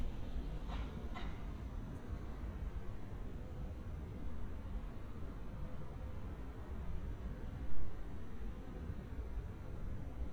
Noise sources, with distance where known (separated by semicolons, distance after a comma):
background noise